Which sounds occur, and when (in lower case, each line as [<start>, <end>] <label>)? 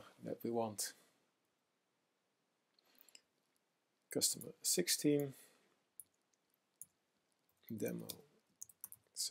[0.00, 0.18] human sounds
[0.00, 9.30] background noise
[0.22, 0.94] male speech
[2.71, 2.83] clicking
[2.85, 3.21] surface contact
[3.09, 3.23] clicking
[4.13, 5.37] male speech
[4.38, 4.47] clicking
[5.16, 5.29] clicking
[5.32, 5.68] breathing
[5.97, 6.40] computer keyboard
[6.72, 6.96] computer keyboard
[7.69, 8.31] male speech
[8.06, 8.20] computer keyboard
[8.59, 8.70] computer keyboard
[8.80, 9.03] computer keyboard